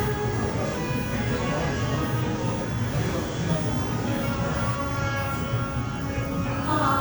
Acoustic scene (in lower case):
cafe